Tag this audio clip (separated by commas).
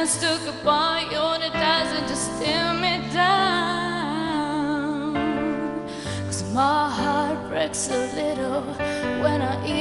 Music